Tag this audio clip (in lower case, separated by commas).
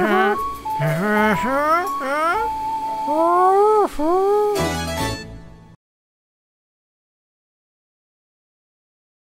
music, music for children